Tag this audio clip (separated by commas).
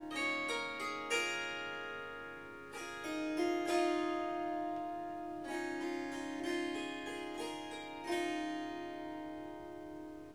Harp, Music, Musical instrument